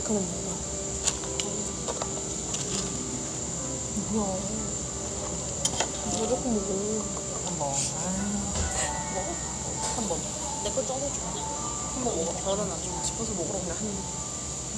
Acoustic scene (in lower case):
cafe